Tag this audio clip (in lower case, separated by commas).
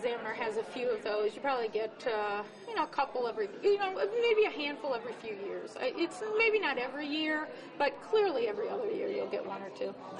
woman speaking